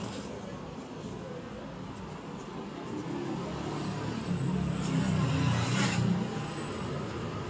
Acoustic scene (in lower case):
street